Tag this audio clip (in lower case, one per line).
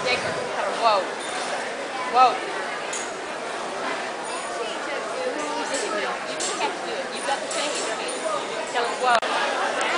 speech